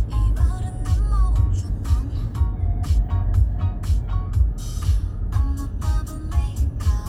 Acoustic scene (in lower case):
car